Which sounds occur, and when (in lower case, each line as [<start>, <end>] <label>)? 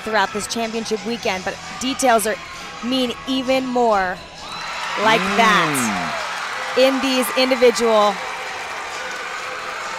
[0.00, 0.44] shout
[0.00, 1.56] female speech
[0.00, 8.16] conversation
[0.00, 9.95] music
[1.52, 3.83] shout
[1.78, 2.33] female speech
[2.79, 4.16] female speech
[4.32, 9.95] cheering
[4.32, 9.95] clapping
[4.93, 6.11] human sounds
[4.94, 5.91] female speech
[6.71, 8.16] female speech